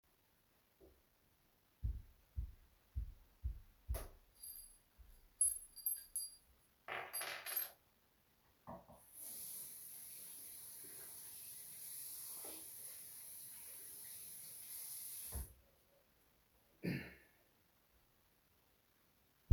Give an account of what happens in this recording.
I switched the lights in the bathroom, while holding keys. Next I put the keys next to the sink, turned water no, washed my hands and coughed lightly.